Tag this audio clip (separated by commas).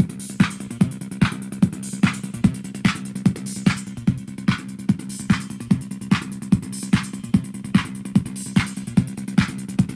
Music, Techno